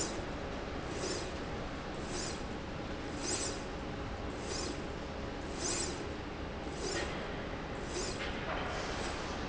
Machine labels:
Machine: slide rail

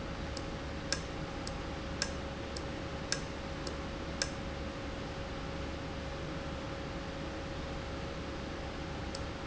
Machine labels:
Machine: valve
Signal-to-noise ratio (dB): -6 dB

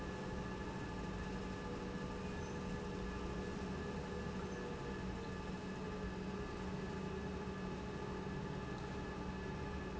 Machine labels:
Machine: pump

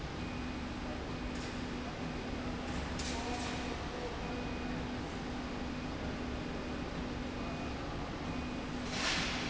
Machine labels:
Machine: slide rail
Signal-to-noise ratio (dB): -6 dB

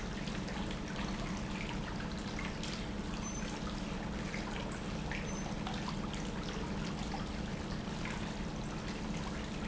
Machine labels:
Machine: pump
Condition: normal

